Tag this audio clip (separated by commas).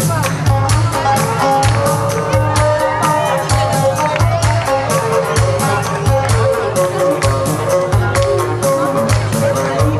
Music, Speech